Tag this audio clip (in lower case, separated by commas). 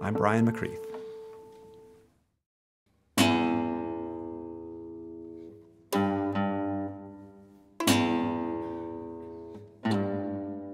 violin, music, speech